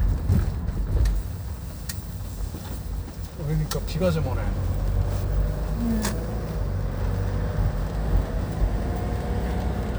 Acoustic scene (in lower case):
car